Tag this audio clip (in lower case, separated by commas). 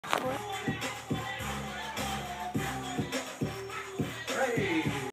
speech, music